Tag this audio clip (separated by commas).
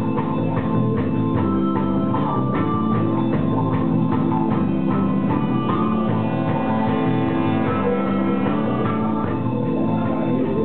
Music